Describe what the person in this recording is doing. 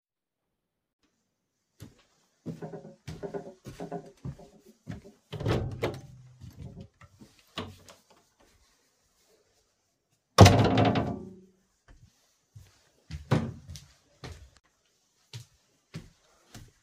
I walked through the hallway and opened the door.